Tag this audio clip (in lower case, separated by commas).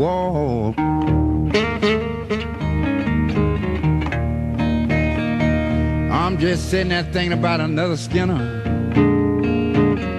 musical instrument, music, speech, guitar